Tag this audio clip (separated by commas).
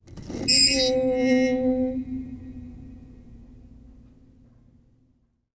Screech